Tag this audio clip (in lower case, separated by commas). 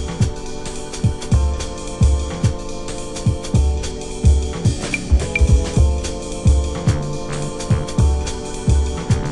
bass drum, music